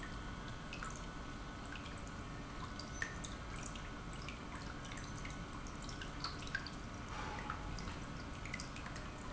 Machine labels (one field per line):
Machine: pump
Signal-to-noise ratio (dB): 6 dB